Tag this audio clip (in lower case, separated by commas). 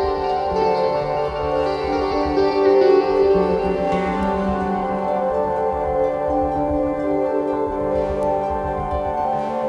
electronic music, ambient music, music